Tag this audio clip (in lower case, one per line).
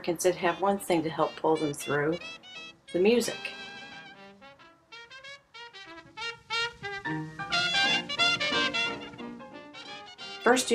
speech
music